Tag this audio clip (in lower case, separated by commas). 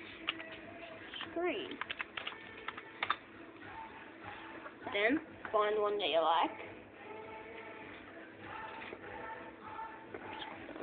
music, speech